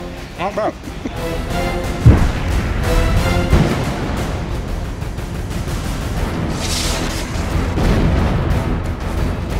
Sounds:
Speech, Music

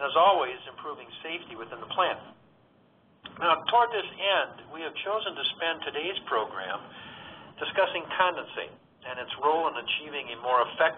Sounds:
Speech

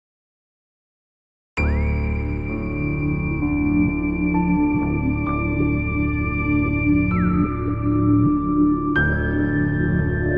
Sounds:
New-age music, Music, Ambient music

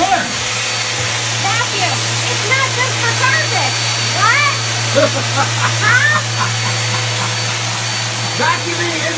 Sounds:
Speech, inside a small room

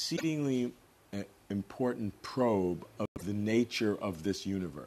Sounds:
Speech

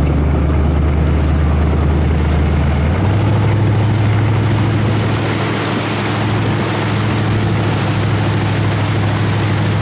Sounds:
Motorboat, Vehicle

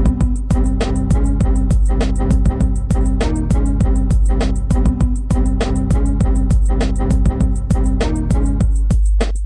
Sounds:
Music

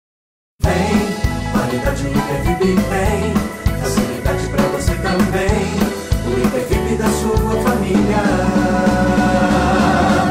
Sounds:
Jingle (music), Music

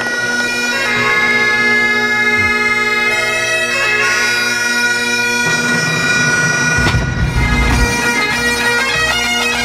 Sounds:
playing bagpipes, Wind instrument, Bagpipes

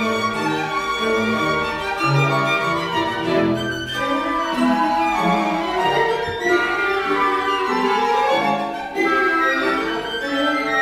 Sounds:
Violin, Music, Musical instrument

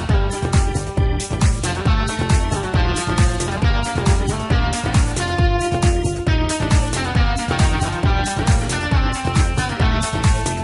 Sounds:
Music, Exciting music

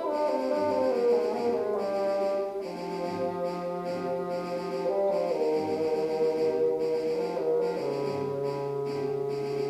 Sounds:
playing bassoon

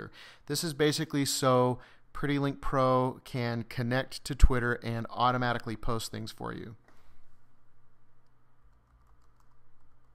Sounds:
Speech

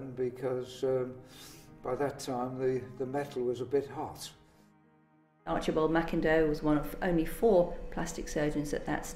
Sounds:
Speech

